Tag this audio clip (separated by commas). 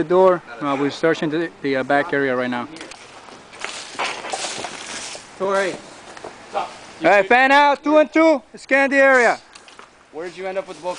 Speech